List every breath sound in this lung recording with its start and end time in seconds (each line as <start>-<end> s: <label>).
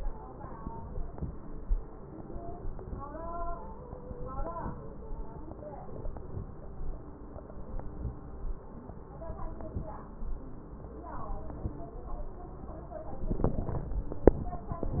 9.32-10.03 s: inhalation
11.18-12.00 s: inhalation